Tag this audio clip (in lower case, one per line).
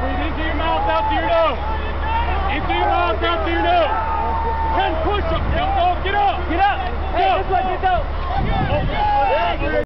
speech